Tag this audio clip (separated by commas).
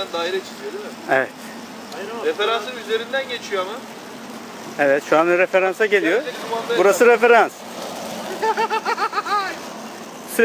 Speech, Car